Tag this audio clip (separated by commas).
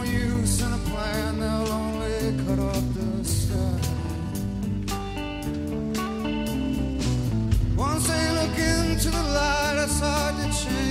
Music